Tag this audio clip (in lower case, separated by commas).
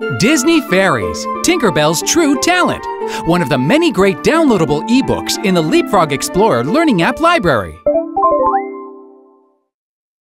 speech, music